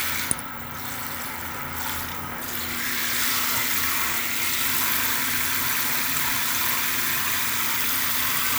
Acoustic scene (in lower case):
restroom